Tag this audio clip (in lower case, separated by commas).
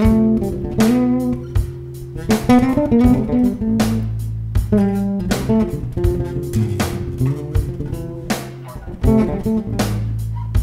blues, musical instrument, jazz, guitar, music, plucked string instrument, bass guitar